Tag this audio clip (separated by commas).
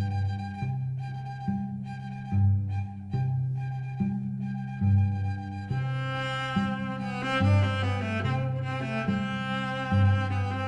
playing cello